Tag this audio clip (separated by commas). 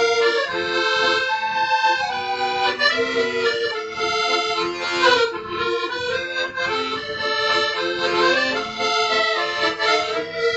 Music, Accordion, playing accordion, Musical instrument